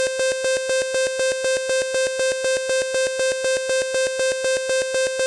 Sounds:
alarm

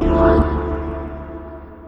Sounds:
keyboard (musical)
organ
musical instrument
music

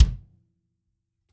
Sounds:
musical instrument
bass drum
drum
music
percussion

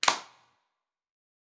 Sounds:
clapping
hands

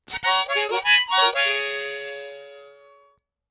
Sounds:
harmonica
music
musical instrument

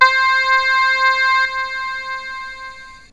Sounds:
musical instrument
keyboard (musical)
music

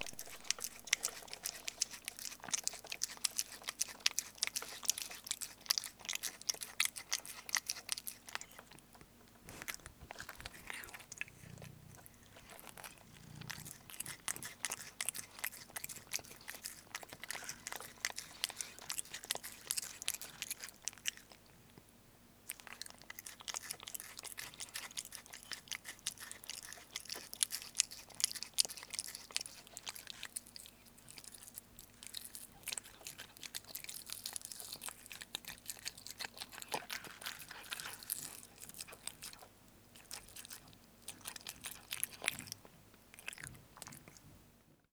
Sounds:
musical instrument
woodwind instrument
music

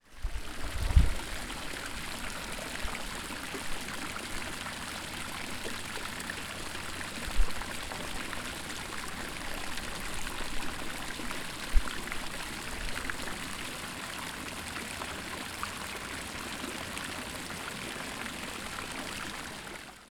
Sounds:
human group actions
water
chatter
stream

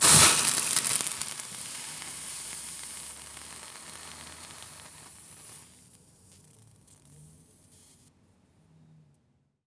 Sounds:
hiss

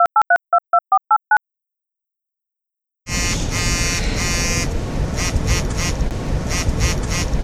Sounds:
telephone
alarm

